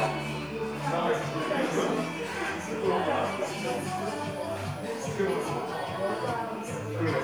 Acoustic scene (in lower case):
crowded indoor space